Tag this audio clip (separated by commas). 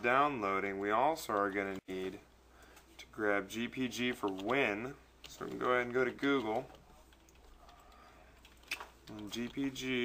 Speech